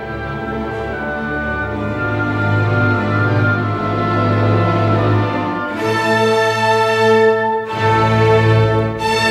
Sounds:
fiddle, Musical instrument, Music

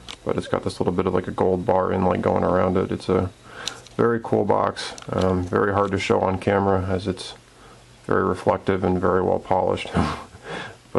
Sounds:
inside a small room, Speech

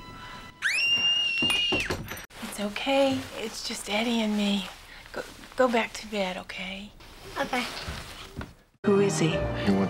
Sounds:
Speech, Music, Tap

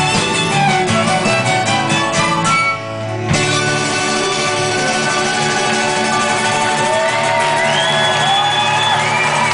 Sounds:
Bluegrass, Music

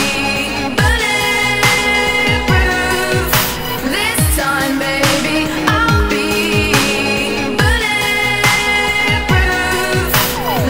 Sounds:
Dubstep, Music

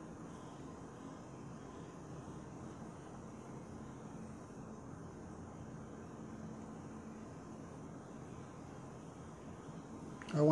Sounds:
Silence

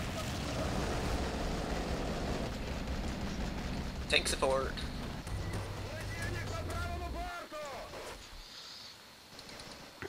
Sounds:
Speech

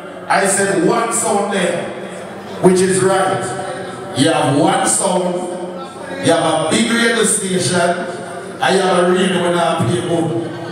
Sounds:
Reverberation, Speech

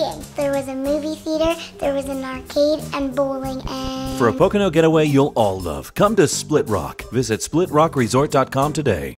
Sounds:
Speech, Music

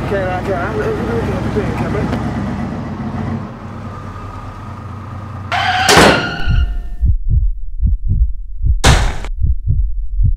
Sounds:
Heart sounds

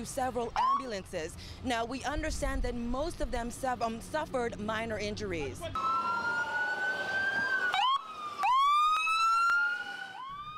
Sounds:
Police car (siren), Emergency vehicle, Siren

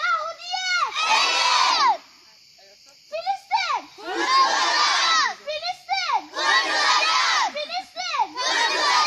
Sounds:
children shouting

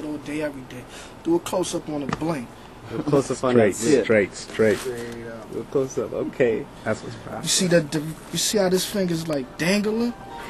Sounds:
Speech

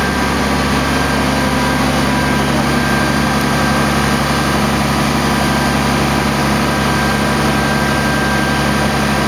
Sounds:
Vehicle, Truck

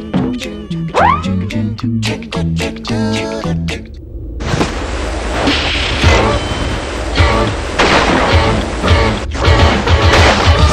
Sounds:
Music

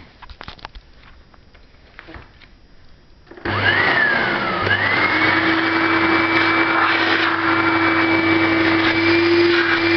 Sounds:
Vacuum cleaner

